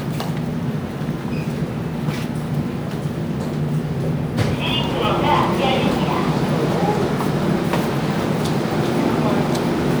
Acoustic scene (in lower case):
subway station